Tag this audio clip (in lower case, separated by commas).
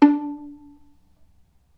bowed string instrument, music, musical instrument